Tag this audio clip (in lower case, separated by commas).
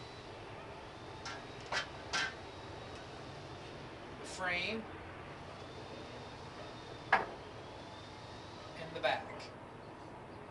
speech, tools